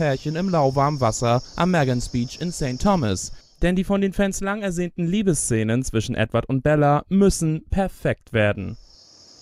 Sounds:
Speech

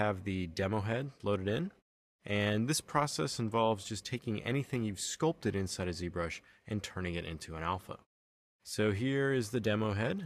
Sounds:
Speech

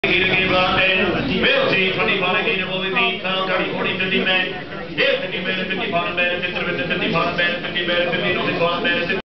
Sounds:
Speech

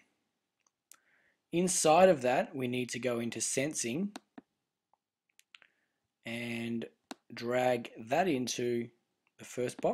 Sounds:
Clicking, Speech

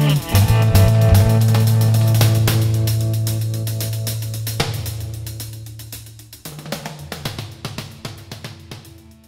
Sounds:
Music

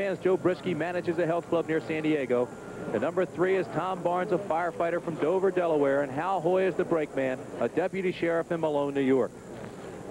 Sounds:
Speech

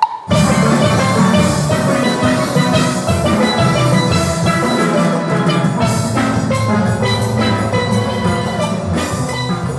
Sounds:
playing steelpan

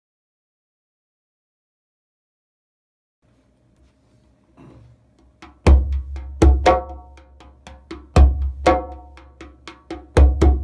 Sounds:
playing bongo

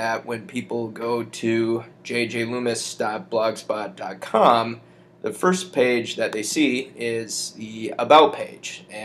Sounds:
Speech

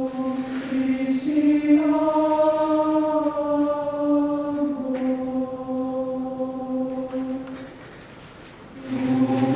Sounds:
Male singing, Choir

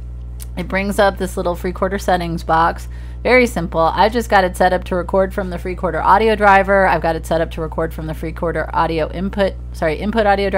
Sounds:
Speech

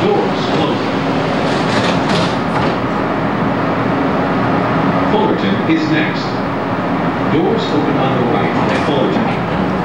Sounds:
Train, Railroad car, Subway, Rail transport

